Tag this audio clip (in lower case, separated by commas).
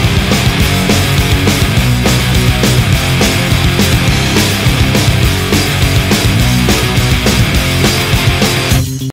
music